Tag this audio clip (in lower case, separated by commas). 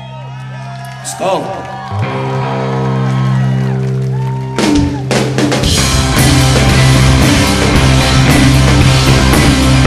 music, speech